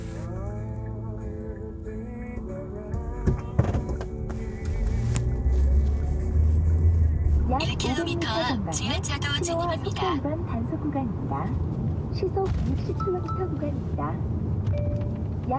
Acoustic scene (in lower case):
car